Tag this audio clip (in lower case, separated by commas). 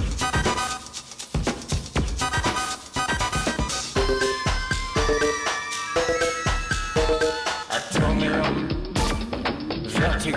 music, singing